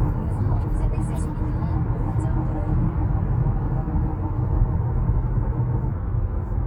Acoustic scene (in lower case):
car